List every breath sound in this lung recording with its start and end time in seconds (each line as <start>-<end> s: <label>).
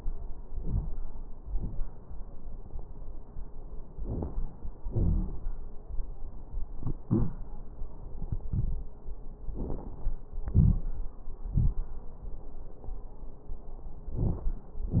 0.57-0.97 s: inhalation
0.57-0.97 s: crackles
1.44-1.84 s: exhalation
1.44-1.84 s: crackles
3.99-4.39 s: inhalation
3.99-4.39 s: crackles
4.87-5.33 s: exhalation
4.87-5.33 s: crackles
9.46-10.02 s: inhalation
9.46-10.02 s: crackles
10.49-10.94 s: exhalation
10.49-10.94 s: crackles